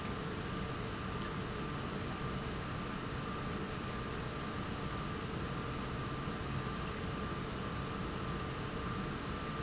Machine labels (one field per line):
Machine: pump